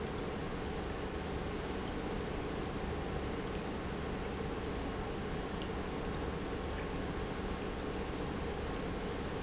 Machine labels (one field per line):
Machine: pump